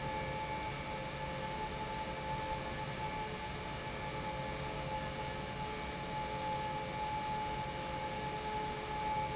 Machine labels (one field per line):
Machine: pump